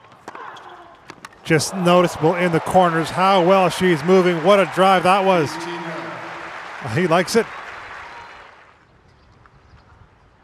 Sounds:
playing tennis

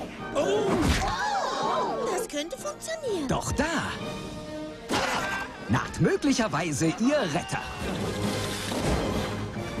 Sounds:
Music, Speech

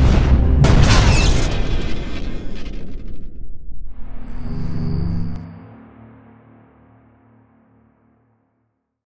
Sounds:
Music

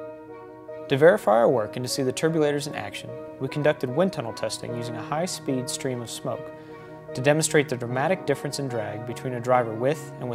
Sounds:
Speech, Music

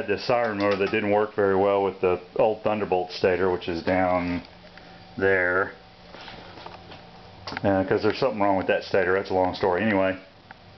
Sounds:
Speech

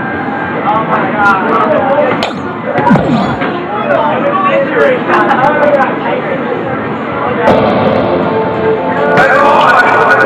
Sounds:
Speech, Music

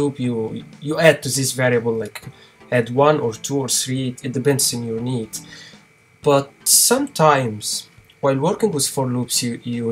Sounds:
Speech, Music

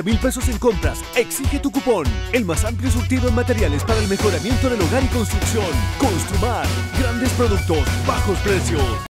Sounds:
Music, Speech

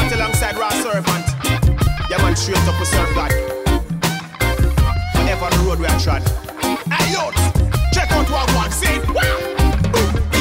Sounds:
Music, Blues

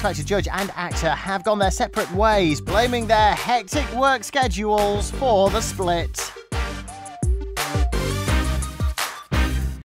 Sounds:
Music, Speech

